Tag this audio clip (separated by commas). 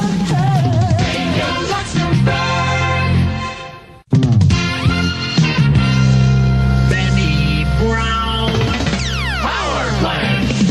Music, Radio